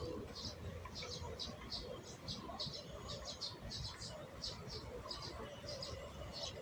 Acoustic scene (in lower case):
park